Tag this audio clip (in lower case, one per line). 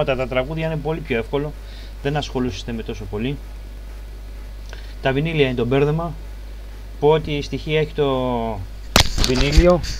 speech